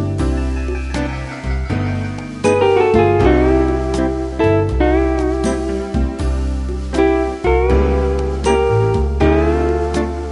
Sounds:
music

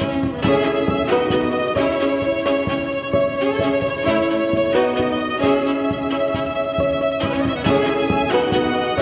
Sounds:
musical instrument
music
bowed string instrument
fiddle

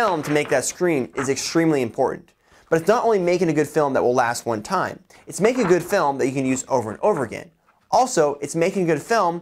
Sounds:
speech

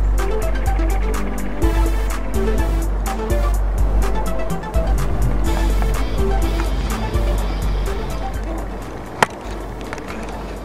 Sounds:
music

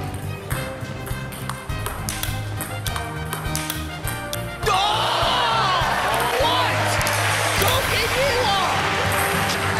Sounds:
playing table tennis

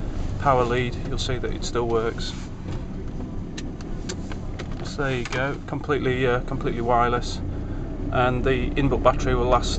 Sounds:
speech

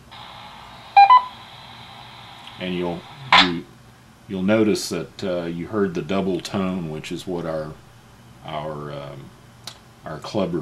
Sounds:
speech

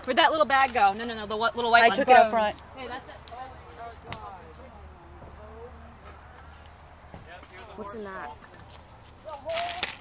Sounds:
speech

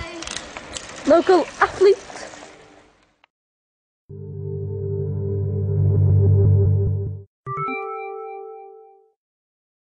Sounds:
vehicle

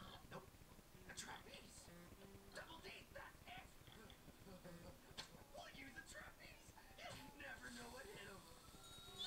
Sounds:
speech

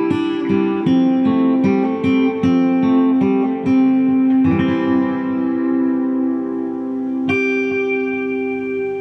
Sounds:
music
guitar

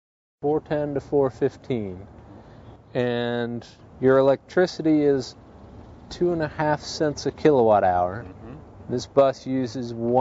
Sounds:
speech

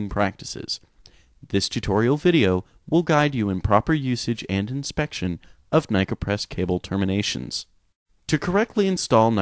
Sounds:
speech

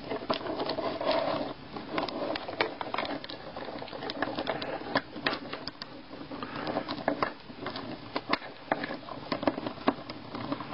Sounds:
rattle

